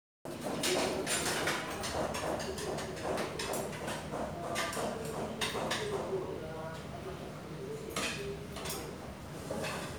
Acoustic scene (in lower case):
restaurant